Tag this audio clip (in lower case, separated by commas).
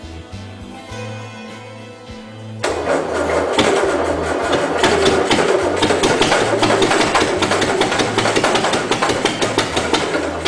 music, engine